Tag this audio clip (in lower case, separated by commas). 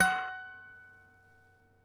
musical instrument, harp, music